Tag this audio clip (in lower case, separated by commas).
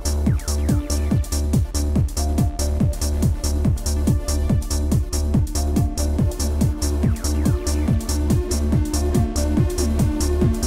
techno, music, electronic music